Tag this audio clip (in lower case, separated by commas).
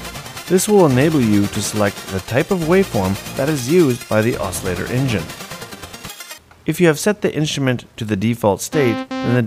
speech, music